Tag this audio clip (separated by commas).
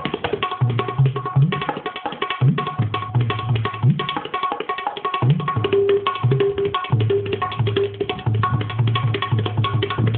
playing tabla